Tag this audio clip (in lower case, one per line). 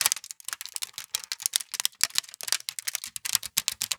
crushing